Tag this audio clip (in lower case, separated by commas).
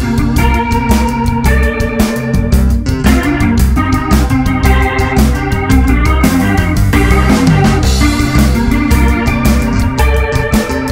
music, tapping (guitar technique)